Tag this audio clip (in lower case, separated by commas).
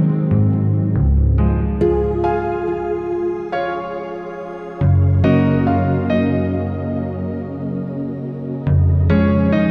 classical music, music